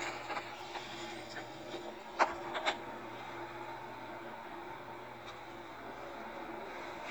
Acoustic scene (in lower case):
elevator